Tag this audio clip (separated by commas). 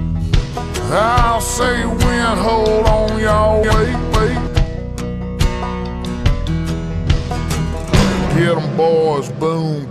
Music